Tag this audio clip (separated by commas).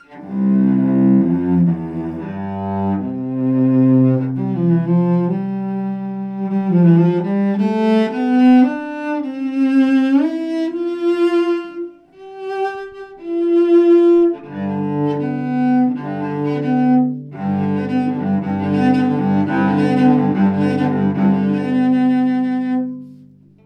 Bowed string instrument, Music, Musical instrument